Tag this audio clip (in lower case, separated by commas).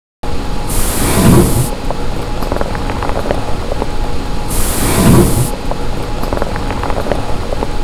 mechanisms